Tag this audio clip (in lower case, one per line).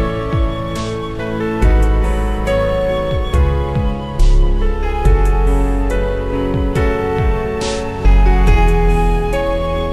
new-age music
background music
music